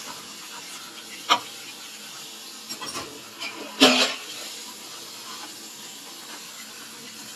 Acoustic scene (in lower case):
kitchen